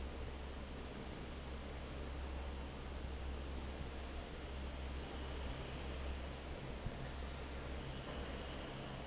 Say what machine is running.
fan